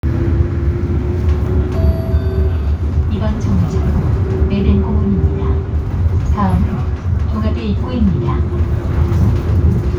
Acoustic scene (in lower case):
bus